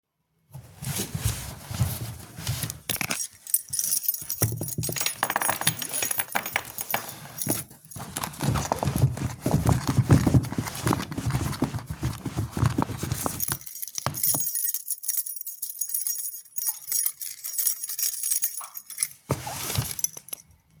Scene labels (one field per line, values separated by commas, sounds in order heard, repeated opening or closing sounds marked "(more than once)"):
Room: bedroom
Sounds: keys